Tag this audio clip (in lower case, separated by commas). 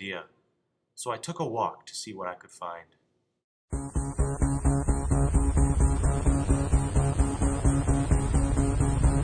music, speech, inside a small room